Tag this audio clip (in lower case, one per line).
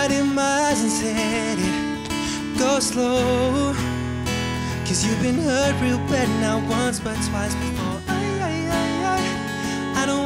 music